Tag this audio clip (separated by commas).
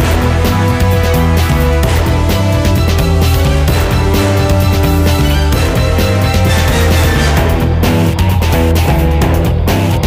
Music